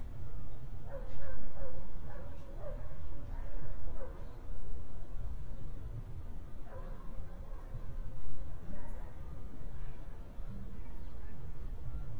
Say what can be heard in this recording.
dog barking or whining